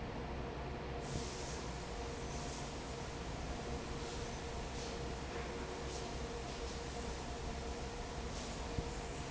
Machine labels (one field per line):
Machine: fan